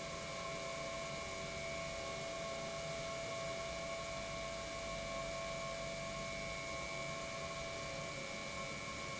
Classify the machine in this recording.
pump